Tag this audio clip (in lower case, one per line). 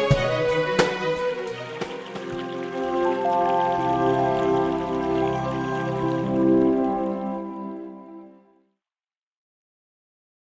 music
sound effect